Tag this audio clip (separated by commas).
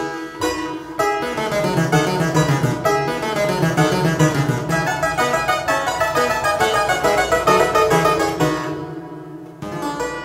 playing harpsichord